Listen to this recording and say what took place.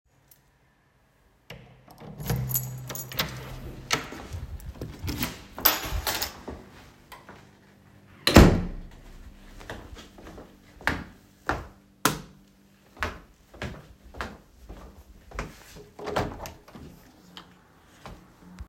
I unlocked the door to the room, opened and closed the door. I turned on the lights and walked to the window. I opened the window.